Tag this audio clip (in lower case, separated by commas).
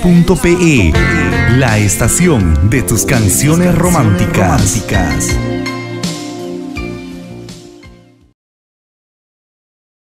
speech, music